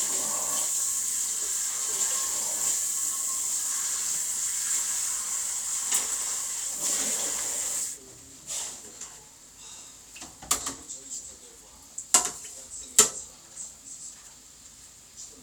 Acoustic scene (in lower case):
kitchen